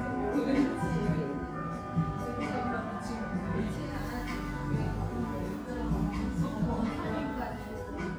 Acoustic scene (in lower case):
cafe